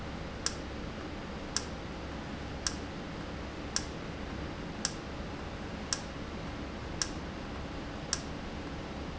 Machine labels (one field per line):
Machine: valve